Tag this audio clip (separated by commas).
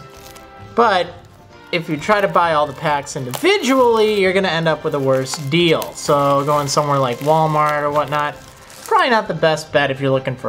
Music, Speech